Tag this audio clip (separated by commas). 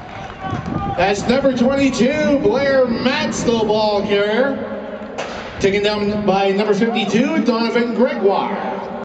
Speech, Run